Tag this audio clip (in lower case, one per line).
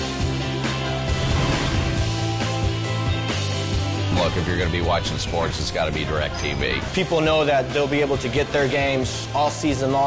speech
music